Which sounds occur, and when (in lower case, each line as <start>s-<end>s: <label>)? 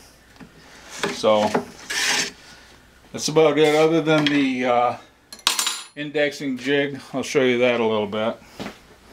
0.0s-9.1s: mechanisms
0.3s-0.5s: generic impact sounds
1.0s-1.1s: generic impact sounds
1.2s-1.6s: man speaking
1.4s-1.6s: generic impact sounds
1.9s-2.3s: surface contact
2.3s-2.8s: breathing
3.1s-5.0s: man speaking
3.5s-3.8s: surface contact
4.2s-4.3s: generic impact sounds
5.3s-5.9s: generic impact sounds
5.9s-8.3s: man speaking
6.9s-7.1s: breathing
8.4s-8.9s: breathing
8.5s-8.8s: surface contact
8.6s-8.7s: footsteps